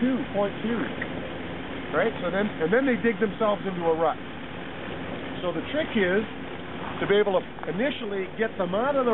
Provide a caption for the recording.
A man is talking and truck engine is idling